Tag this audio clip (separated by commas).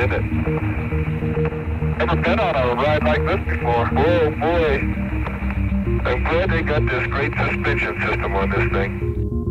Radio